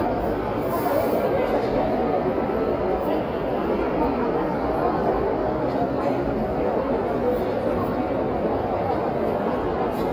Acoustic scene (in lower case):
crowded indoor space